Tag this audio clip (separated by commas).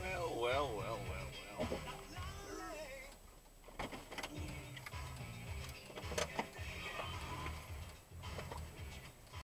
Speech, Music